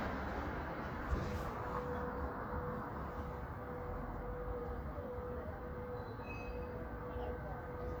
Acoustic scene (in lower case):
residential area